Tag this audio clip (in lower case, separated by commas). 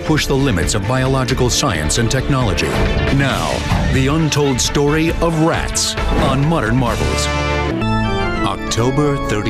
music, speech